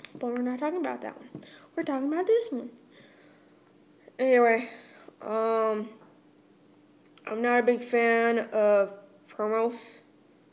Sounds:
speech

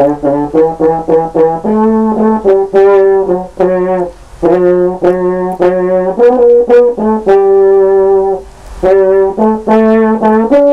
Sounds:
brass instrument, music

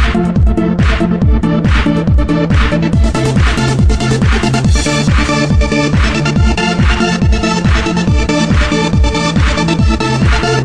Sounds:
electronic music, music

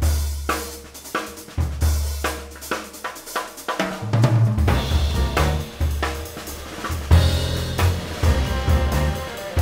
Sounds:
music, drum kit, musical instrument, percussion

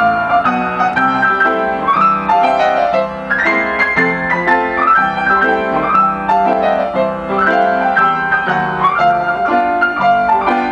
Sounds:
keyboard (musical), piano, music, musical instrument

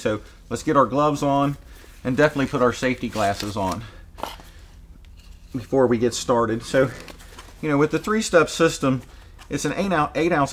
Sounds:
speech

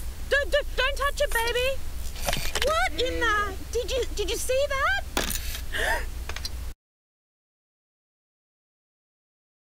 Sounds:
speech

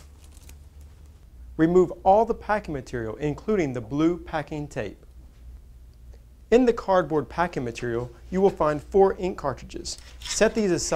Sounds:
speech

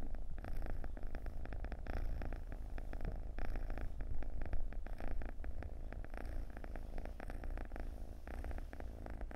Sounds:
cat purring

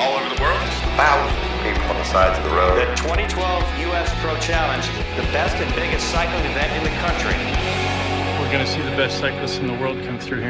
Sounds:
speech, music

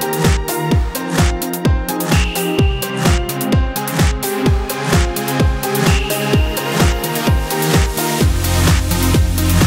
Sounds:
music

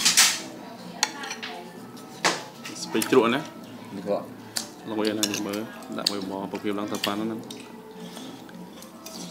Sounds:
dishes, pots and pans

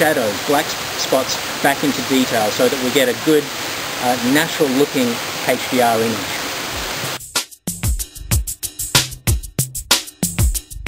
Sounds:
speech, waterfall, music

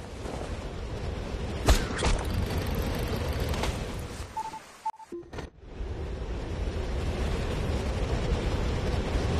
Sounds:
outside, rural or natural

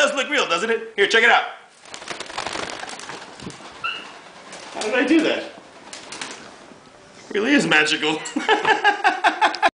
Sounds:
bird, speech

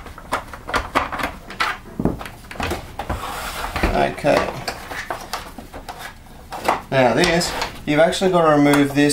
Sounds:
speech

